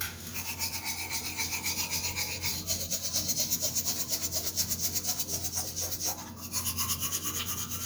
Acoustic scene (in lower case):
restroom